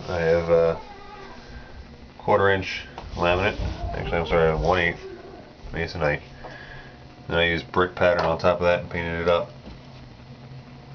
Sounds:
speech

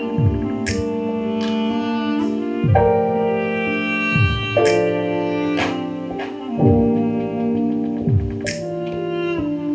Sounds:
sampler, music

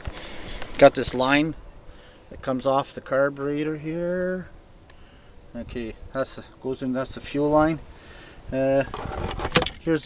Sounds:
speech, outside, urban or man-made

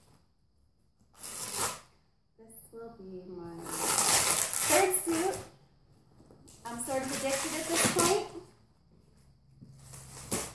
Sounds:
speech, inside a large room or hall

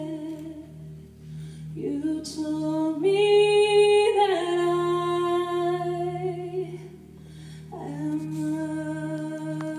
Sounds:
music, vocal music

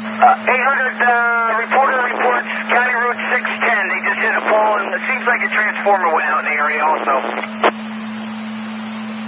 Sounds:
speech, radio

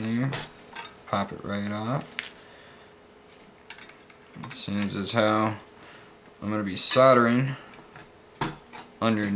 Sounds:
dishes, pots and pans, cutlery

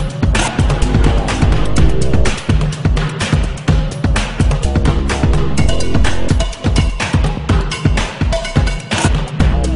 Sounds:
music

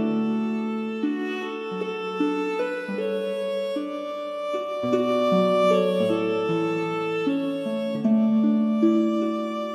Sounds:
music, background music

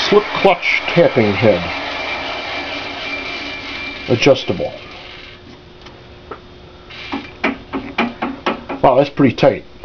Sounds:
speech, drill, tools

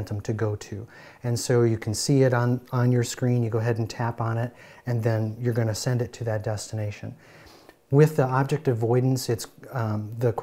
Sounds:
speech

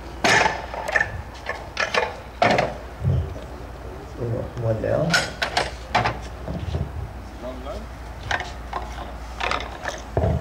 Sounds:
speech

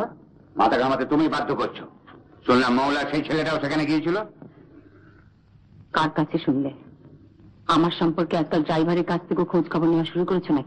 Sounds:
speech, inside a small room

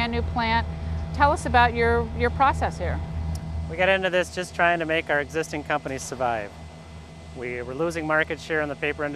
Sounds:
speech

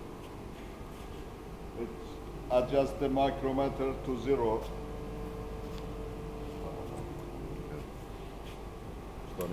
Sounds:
speech

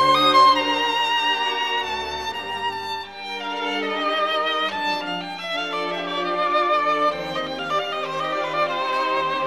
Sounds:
musical instrument, music, violin

